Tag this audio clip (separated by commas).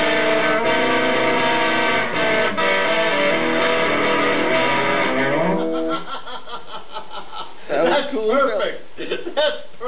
Music, Guitar, Plucked string instrument, Speech, Musical instrument